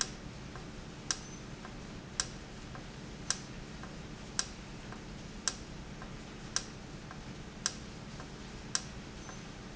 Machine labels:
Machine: valve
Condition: normal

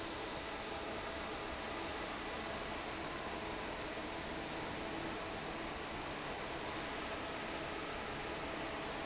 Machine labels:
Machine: fan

